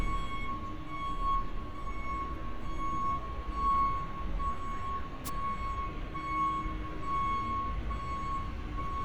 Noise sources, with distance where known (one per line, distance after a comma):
reverse beeper, far